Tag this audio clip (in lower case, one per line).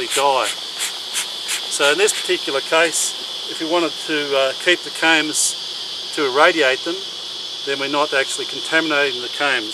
insect
cricket